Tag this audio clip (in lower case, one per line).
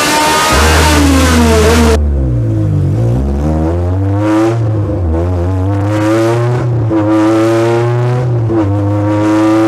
car
vehicle
revving